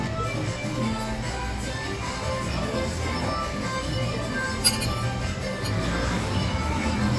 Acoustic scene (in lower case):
cafe